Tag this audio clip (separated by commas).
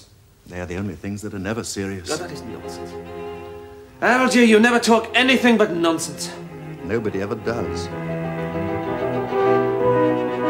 Cello, Speech, Music